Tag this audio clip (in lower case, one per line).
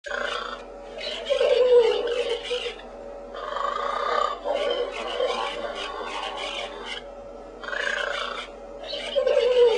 pig